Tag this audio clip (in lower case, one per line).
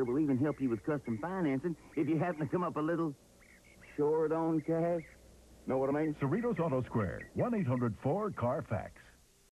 speech